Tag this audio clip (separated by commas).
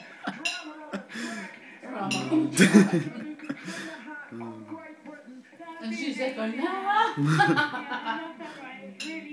Speech, inside a small room